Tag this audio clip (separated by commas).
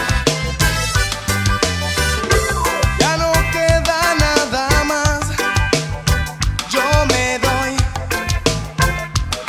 Music